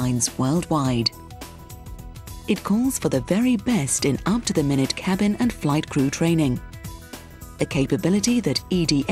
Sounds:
speech, music

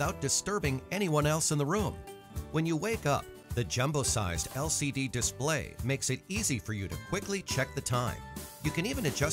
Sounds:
speech, music

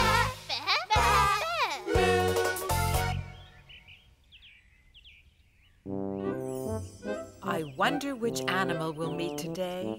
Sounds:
speech, music

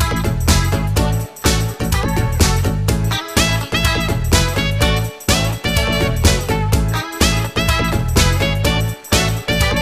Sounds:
music

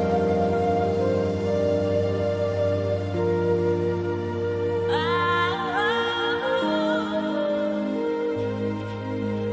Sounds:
music

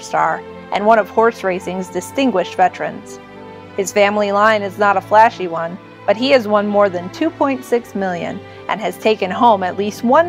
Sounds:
speech, music

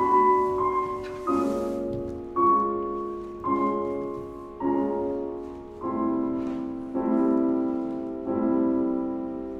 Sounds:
classical music, music

